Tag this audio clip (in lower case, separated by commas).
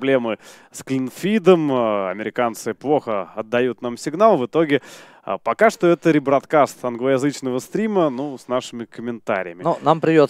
speech